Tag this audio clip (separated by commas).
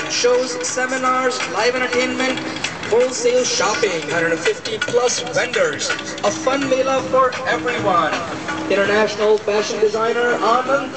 Speech, Music